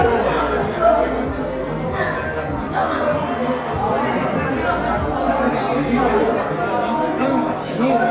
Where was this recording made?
in a crowded indoor space